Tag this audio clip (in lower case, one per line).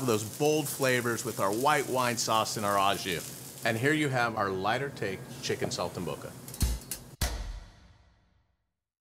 speech
music